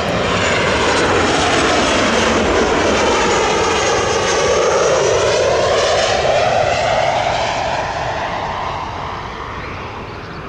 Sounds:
airplane flyby

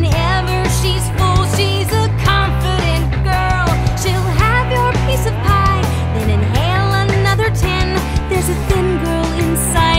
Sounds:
music

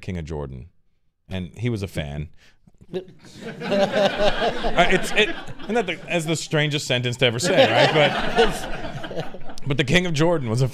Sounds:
speech

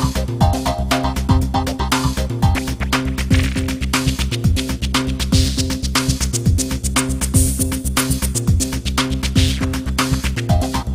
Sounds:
music

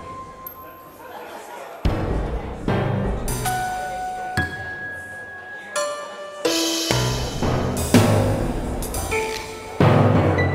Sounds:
music
speech

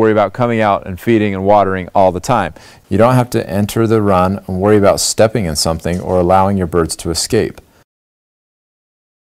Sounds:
speech

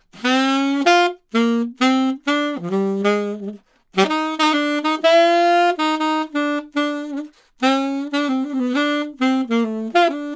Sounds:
playing saxophone

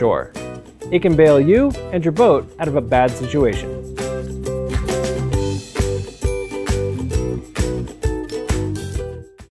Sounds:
music
speech

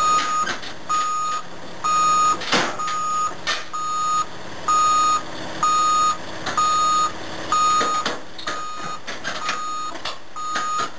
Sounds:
vehicle
outside, rural or natural

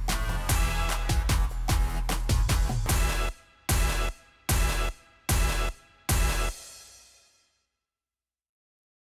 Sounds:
music

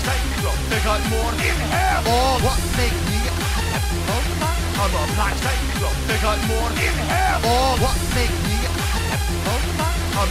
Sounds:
music
speech

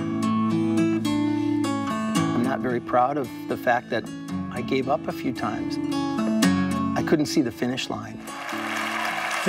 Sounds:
acoustic guitar
music
plucked string instrument
guitar
musical instrument

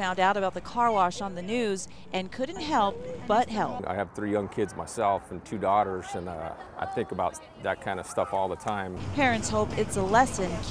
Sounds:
speech

